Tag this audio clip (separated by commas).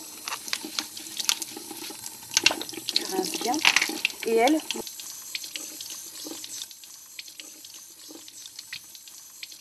Water, faucet, Sink (filling or washing)